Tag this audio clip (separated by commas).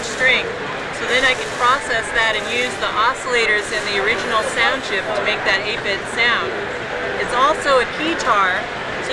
Speech